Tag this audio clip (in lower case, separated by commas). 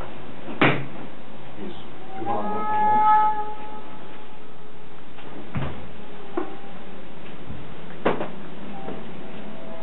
music, speech